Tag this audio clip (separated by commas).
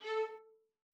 Bowed string instrument, Musical instrument, Music